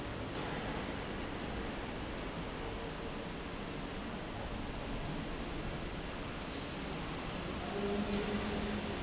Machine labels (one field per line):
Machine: fan